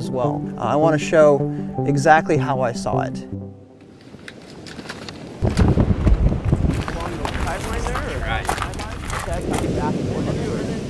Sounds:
Music, Speech

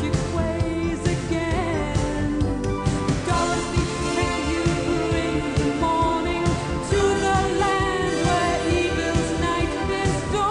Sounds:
Soundtrack music, Music

